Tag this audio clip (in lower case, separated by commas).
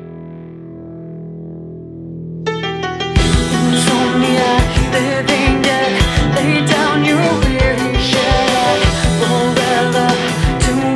music